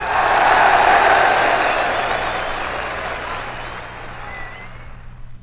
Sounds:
human group actions
crowd

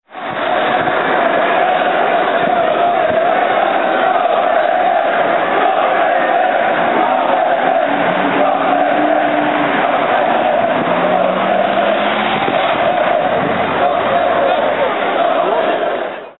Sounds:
human group actions
crowd

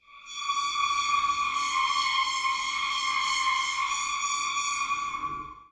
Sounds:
screech

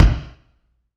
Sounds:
drum
music
bass drum
musical instrument
percussion

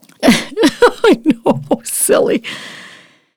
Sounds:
human voice
laughter
giggle

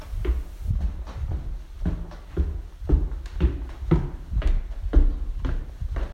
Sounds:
footsteps

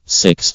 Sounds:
human voice
speech
man speaking

